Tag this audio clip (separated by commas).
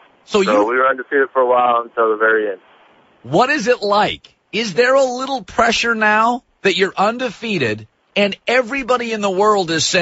Radio, Speech